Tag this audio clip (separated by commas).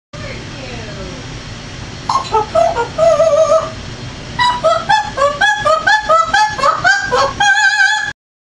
Speech, Opera